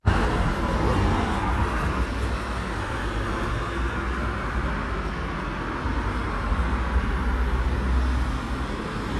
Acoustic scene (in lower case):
street